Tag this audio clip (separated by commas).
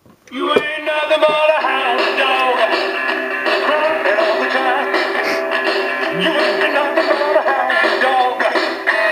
Music, Male singing